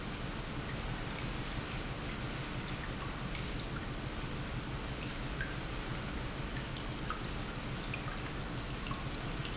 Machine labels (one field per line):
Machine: pump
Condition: normal